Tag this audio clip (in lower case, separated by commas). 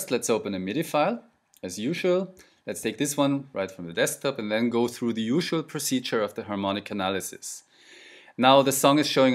speech